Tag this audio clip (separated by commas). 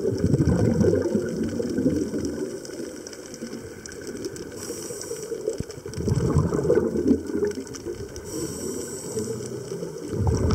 scuba diving